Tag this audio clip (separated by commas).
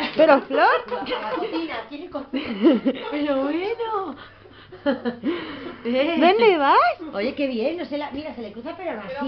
Animal, Speech, Sheep